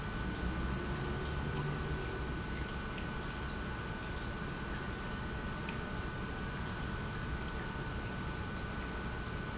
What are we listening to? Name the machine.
pump